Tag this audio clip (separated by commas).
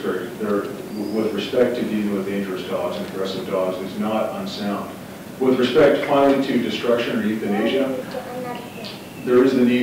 Speech